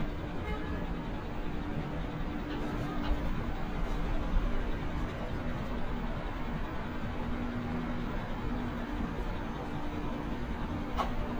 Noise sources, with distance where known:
large-sounding engine, near; car horn, near

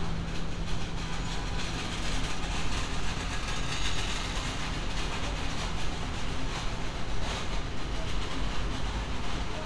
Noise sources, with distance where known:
non-machinery impact, near; car horn, far

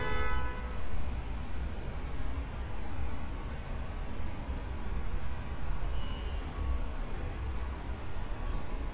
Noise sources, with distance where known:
engine of unclear size, near; car horn, near

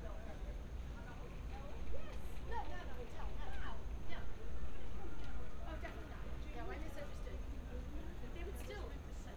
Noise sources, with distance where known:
person or small group talking

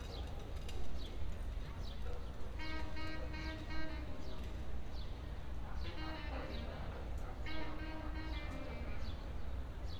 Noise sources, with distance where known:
music from an unclear source; dog barking or whining, far

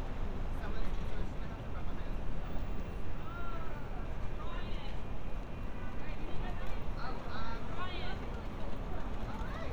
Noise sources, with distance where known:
person or small group talking

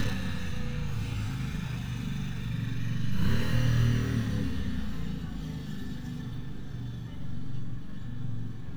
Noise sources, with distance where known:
medium-sounding engine, near

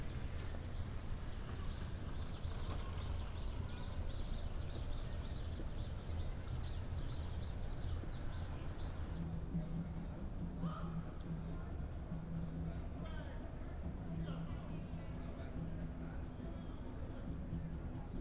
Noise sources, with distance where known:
unidentified human voice

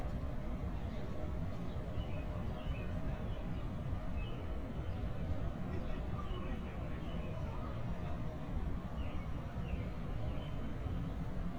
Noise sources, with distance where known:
unidentified human voice, far

